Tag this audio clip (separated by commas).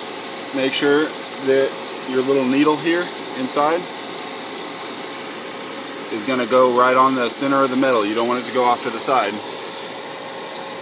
Speech